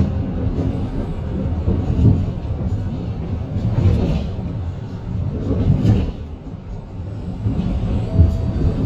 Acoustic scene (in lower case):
bus